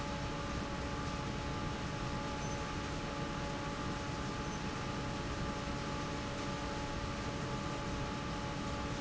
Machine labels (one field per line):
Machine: fan